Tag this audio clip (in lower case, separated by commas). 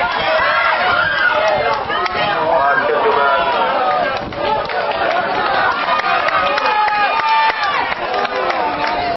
speech